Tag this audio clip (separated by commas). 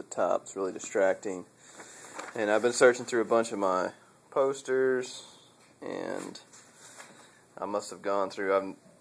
Speech